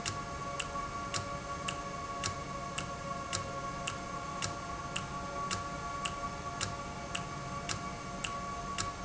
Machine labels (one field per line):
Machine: valve